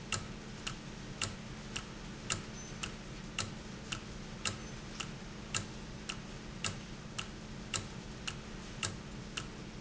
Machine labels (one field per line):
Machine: valve